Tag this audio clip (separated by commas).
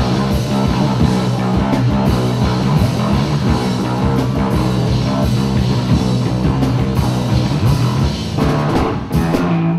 Drum kit, Rock music, Musical instrument, Music, Bass guitar, Guitar